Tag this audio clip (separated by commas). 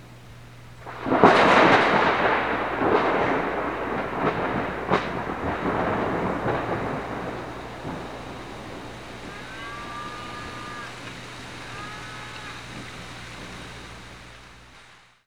Thunder, Water, Rain, Thunderstorm